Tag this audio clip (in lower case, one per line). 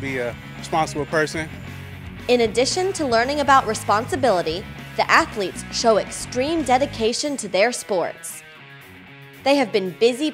speech
music